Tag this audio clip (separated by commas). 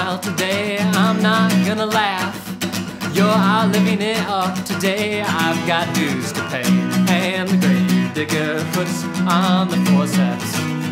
Music